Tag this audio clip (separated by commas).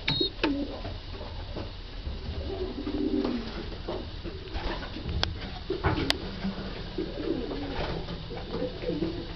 Bird, Coo, dove, pigeon, bird song